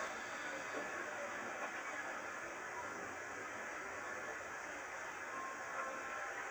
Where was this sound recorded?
on a subway train